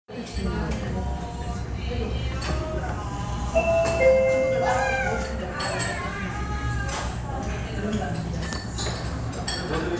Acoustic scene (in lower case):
restaurant